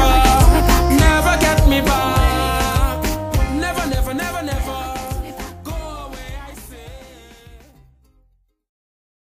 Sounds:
Rhythm and blues, Music

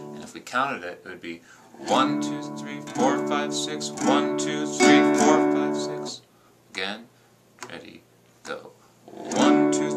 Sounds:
Musical instrument, Plucked string instrument, Guitar, Strum, Speech, Music

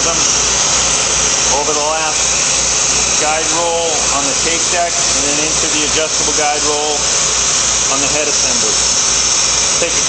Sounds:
Speech

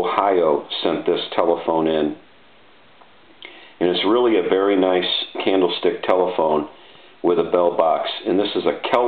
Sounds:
Speech

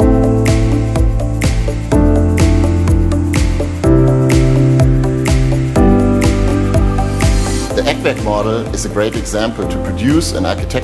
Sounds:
Music, Speech

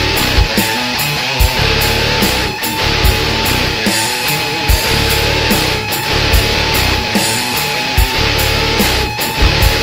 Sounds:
Music

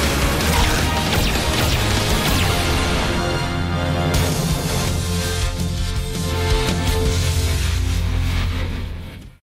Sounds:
Music

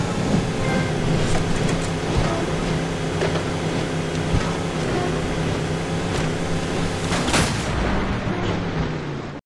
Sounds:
Vehicle

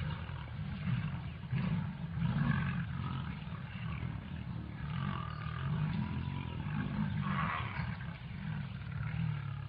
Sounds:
Animal, lions growling, roaring cats, Wild animals, Roar

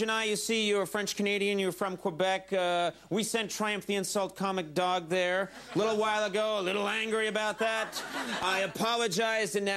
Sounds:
Speech

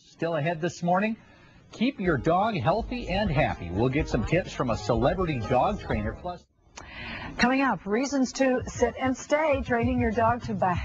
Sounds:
Speech

